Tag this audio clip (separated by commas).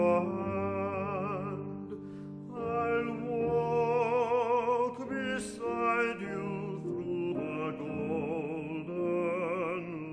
Music